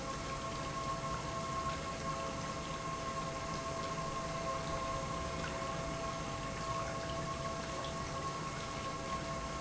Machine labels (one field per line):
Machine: pump